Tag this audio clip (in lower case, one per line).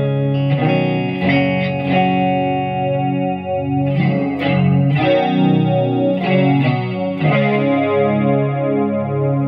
effects unit
guitar
music
musical instrument
distortion